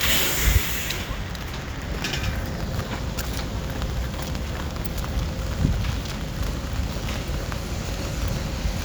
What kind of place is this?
residential area